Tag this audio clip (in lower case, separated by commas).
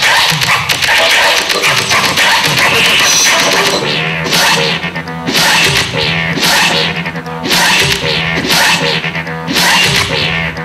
music, electronic music, scratching (performance technique)